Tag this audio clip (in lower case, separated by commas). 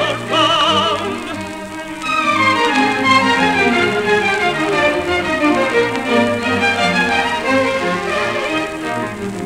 orchestra, music